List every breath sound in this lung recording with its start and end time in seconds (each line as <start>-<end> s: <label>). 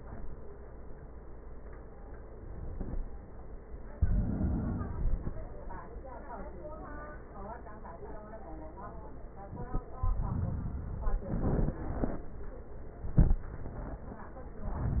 3.89-5.39 s: inhalation
9.92-11.42 s: inhalation